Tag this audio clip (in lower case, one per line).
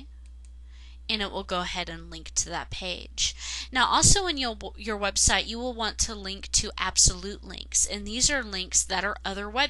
monologue